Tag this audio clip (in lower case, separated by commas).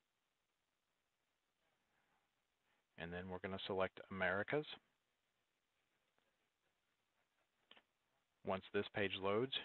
speech